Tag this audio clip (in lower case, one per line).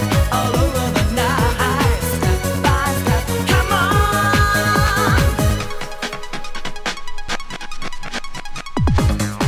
music
trance music
techno